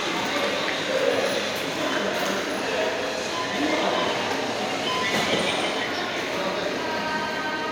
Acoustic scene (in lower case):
subway station